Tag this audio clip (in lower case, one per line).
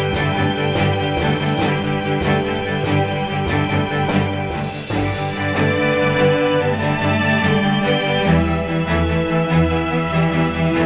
music